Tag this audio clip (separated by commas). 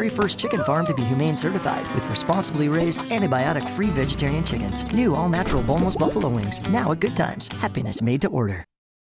Music, Speech